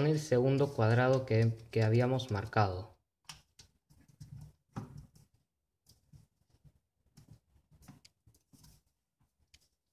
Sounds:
speech

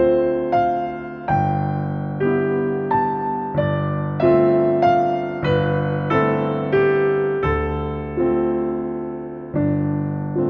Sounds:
music

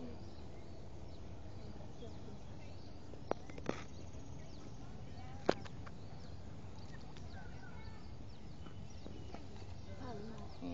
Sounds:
speech

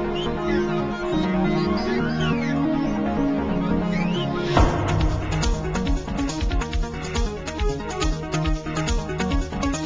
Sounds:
music

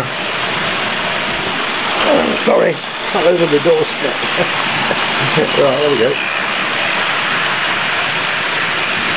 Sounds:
rail transport
speech
train

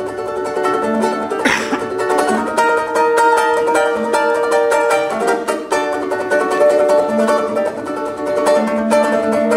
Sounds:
guitar
music
ukulele

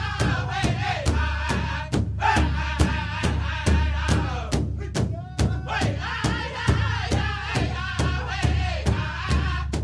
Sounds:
music

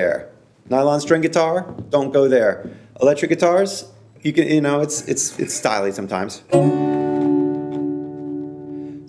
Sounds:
plucked string instrument
musical instrument
acoustic guitar
guitar
music
speech

